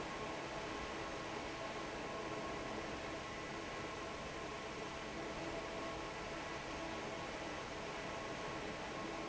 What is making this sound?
fan